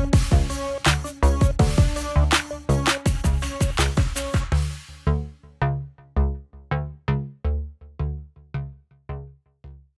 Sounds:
Music

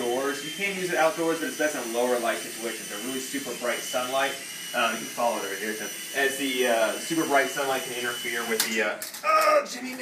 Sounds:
Helicopter, Speech

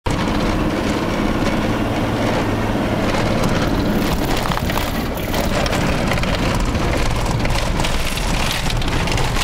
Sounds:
Vehicle, Truck

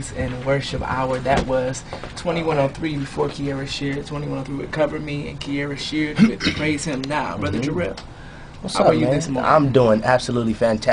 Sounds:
Speech

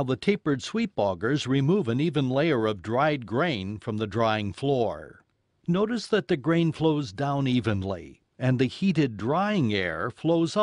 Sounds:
Speech

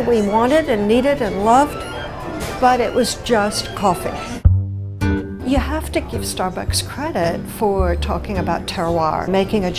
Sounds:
Speech, Music

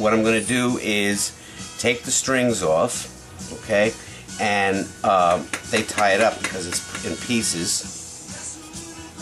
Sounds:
Music, Speech

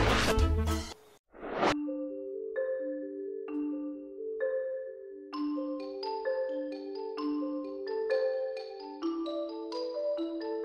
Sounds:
Music

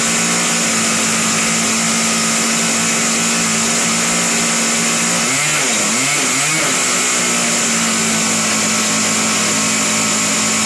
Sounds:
Engine, Heavy engine (low frequency)

